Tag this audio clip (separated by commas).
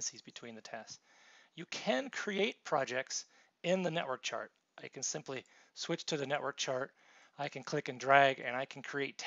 Speech